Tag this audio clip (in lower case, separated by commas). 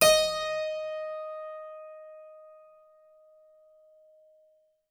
music, keyboard (musical), musical instrument